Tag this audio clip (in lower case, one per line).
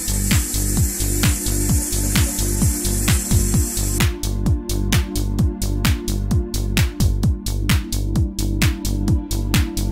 music